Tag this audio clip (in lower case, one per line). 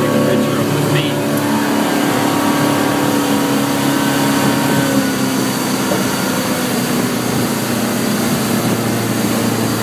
boat
vehicle